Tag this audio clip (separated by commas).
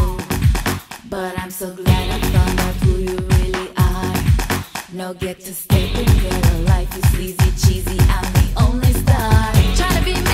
Disco